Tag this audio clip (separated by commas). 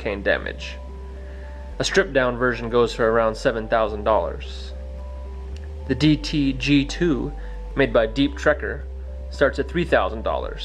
Music, Speech